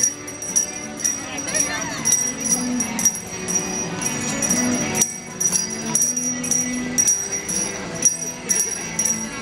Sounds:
jingle bell

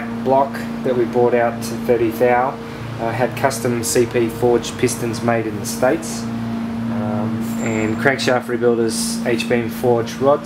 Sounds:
vehicle, medium engine (mid frequency), speech, car, idling, engine

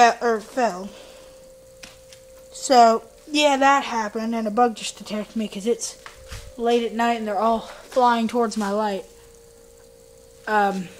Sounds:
speech

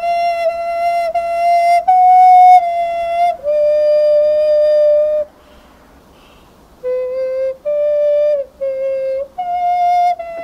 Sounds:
musical instrument, music

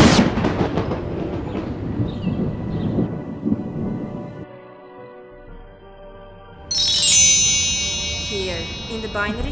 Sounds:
music, speech

